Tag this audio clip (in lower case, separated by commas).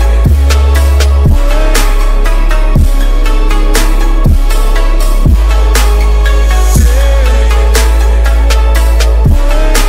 music